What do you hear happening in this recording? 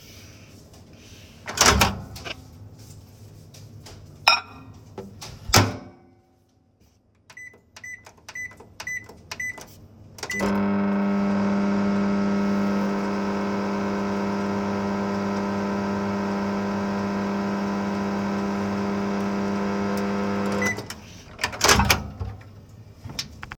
The phone is placed on the kitchen counter. I open the microwave door, place a plate inside, and press several buttons. I start the microwave for a short period, then open it again and take the plate out.